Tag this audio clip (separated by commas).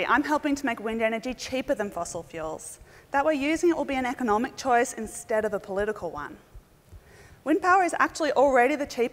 Speech